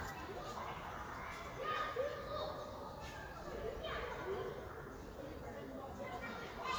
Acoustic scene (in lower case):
park